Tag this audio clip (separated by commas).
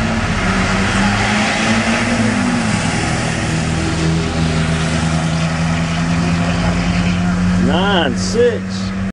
Speech